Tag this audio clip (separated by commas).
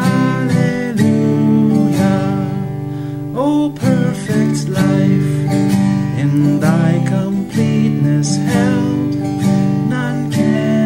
Music, Plucked string instrument, Musical instrument, Guitar, Strum